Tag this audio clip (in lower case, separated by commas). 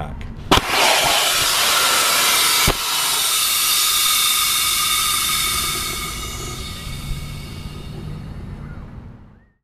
outside, rural or natural, speech